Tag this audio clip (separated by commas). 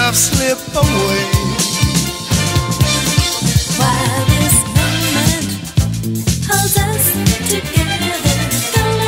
Music, Funk